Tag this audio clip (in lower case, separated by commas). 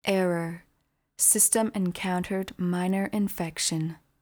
human voice, female speech, speech